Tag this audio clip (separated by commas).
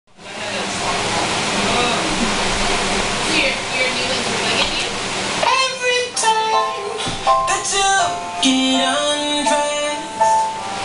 Music, Speech